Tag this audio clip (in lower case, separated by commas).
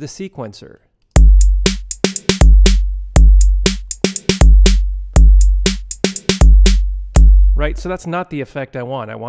drum, percussion